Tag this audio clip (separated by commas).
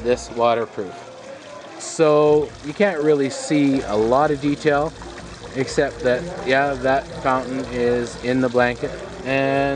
Water